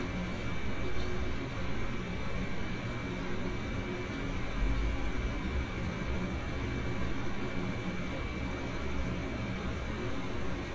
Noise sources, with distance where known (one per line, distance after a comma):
engine of unclear size